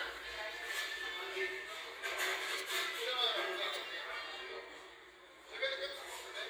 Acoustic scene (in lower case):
crowded indoor space